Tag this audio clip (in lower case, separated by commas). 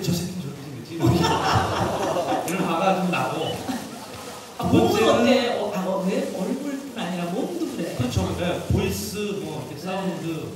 speech